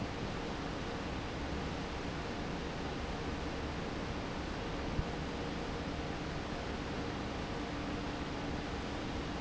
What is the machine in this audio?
fan